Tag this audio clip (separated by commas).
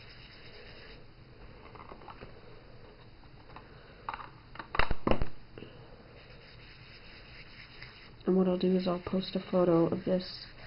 Speech